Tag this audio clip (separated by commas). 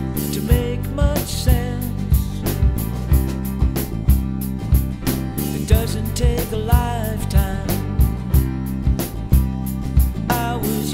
Music